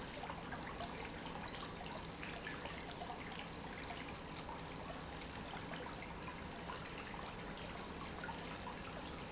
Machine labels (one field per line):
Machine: pump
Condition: normal